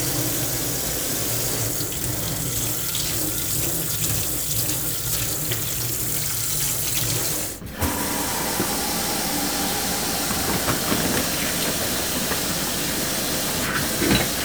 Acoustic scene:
kitchen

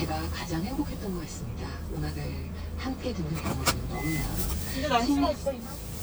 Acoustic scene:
car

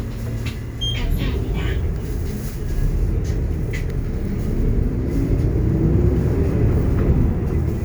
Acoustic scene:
bus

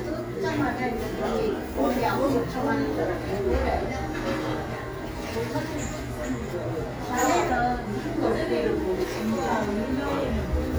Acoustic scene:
cafe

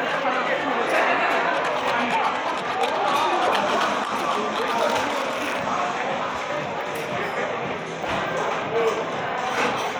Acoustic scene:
cafe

